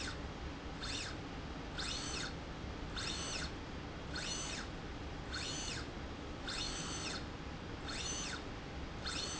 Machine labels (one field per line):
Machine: slide rail